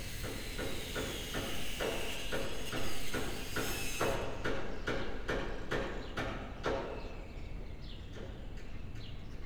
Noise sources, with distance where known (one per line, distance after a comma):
non-machinery impact
small or medium rotating saw